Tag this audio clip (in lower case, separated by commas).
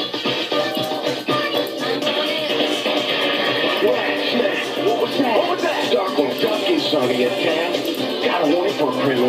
speech, music